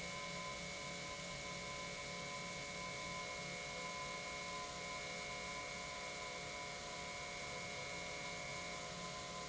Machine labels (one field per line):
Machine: pump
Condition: normal